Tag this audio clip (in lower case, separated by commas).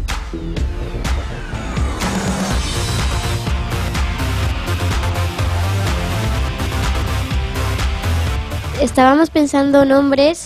music, speech